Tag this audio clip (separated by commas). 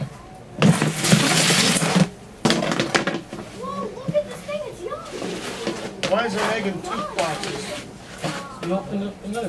Speech